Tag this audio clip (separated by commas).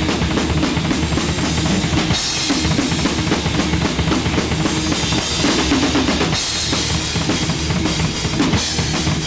Musical instrument, Drum kit, Drum, Music